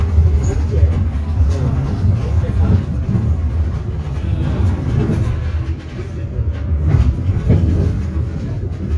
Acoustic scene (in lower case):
bus